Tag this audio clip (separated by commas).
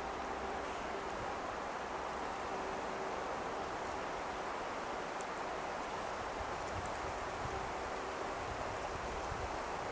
black capped chickadee calling